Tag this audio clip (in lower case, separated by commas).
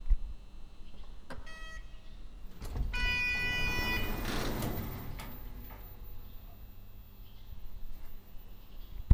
sliding door, home sounds, door